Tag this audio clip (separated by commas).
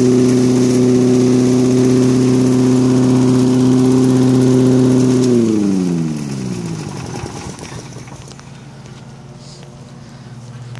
Rustling leaves, outside, rural or natural, Lawn mower